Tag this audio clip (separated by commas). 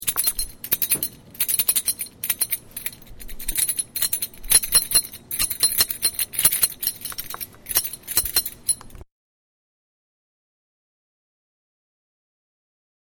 Keys jangling, Domestic sounds